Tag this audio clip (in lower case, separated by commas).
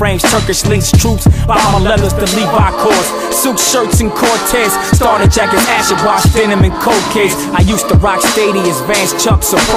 music